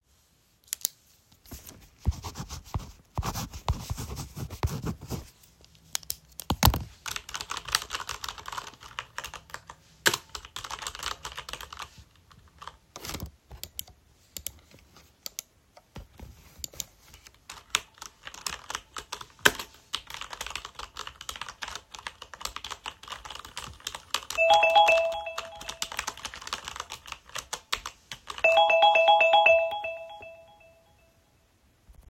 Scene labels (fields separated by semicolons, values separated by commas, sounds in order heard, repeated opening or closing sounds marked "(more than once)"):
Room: office; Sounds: keyboard typing, phone ringing